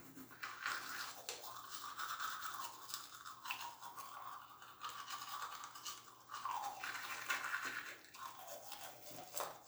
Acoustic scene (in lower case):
restroom